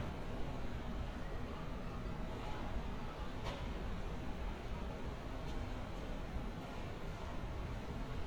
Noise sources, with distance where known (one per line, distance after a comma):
non-machinery impact